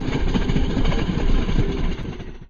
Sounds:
train
rail transport
vehicle

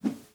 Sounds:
whoosh

